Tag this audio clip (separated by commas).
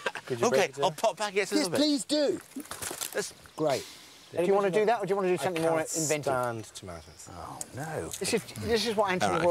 Speech